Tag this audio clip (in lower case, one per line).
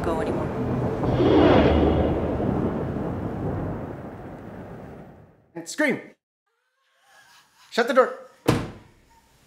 speech